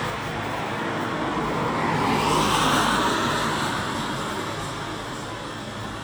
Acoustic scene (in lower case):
street